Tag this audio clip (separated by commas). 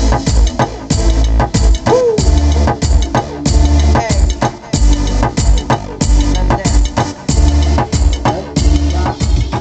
Music